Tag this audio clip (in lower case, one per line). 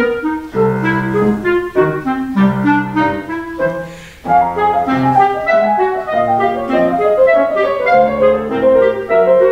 playing clarinet
clarinet